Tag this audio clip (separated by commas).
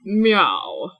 Human voice